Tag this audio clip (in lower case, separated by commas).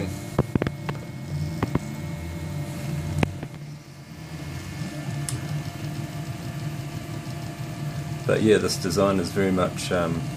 speech